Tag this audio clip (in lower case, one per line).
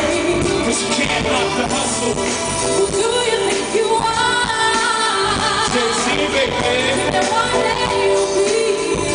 music